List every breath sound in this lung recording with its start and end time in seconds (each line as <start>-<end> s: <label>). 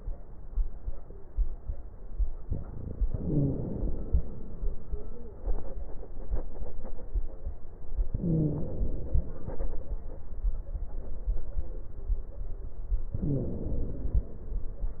3.06-3.87 s: wheeze
3.06-4.56 s: inhalation
8.13-8.83 s: wheeze
8.13-9.69 s: inhalation
13.17-13.93 s: wheeze
13.17-14.72 s: inhalation